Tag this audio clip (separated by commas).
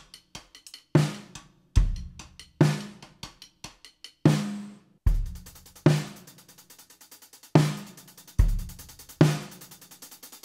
playing timbales